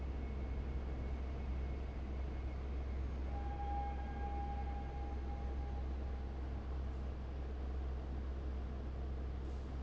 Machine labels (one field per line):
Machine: fan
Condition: abnormal